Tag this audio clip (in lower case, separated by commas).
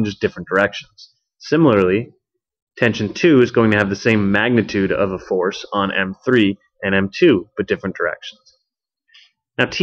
speech, narration